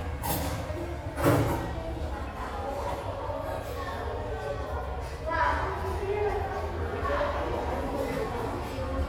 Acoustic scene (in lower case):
restaurant